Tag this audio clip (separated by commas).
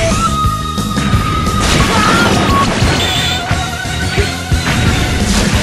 Music